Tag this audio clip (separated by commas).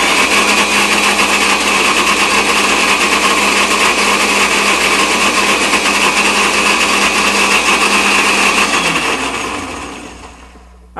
Blender